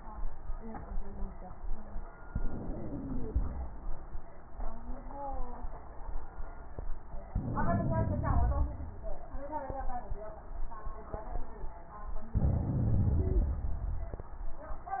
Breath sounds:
2.26-3.61 s: inhalation
2.26-3.61 s: wheeze
7.33-8.68 s: inhalation
7.33-8.68 s: wheeze
12.35-13.70 s: inhalation
13.13-13.60 s: wheeze

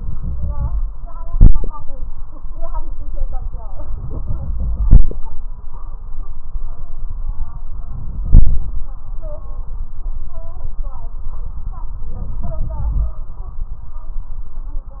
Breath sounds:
0.00-0.78 s: inhalation
3.87-5.12 s: inhalation
7.84-8.85 s: inhalation
12.16-13.17 s: inhalation

